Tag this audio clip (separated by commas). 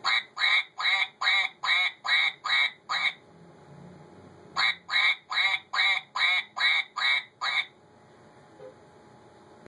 duck quacking, Quack